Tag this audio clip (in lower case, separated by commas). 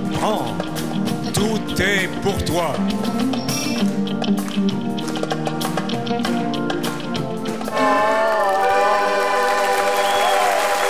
music, male singing